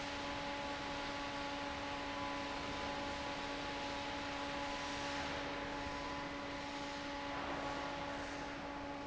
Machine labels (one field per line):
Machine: fan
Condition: normal